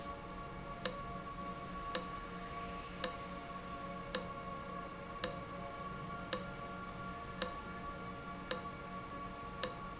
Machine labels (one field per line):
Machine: valve